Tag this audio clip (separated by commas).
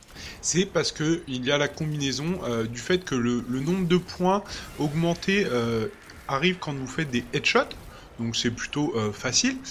Speech